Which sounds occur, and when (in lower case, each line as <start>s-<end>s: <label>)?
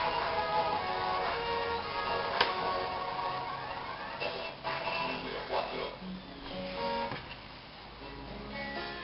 0.0s-7.1s: music
0.0s-9.0s: mechanisms
0.4s-0.5s: generic impact sounds
0.7s-0.8s: generic impact sounds
2.4s-2.6s: generic impact sounds
4.2s-6.0s: speech synthesizer
7.1s-7.4s: generic impact sounds
8.0s-9.0s: music